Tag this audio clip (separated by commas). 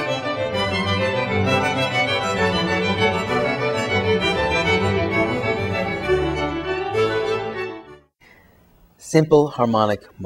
Speech, Music